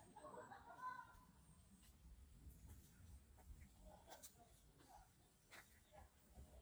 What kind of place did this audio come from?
park